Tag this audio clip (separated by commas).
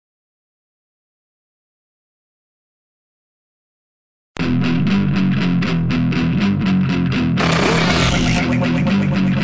Music